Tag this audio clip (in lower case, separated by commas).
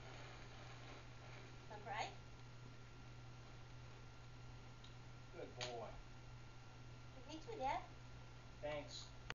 speech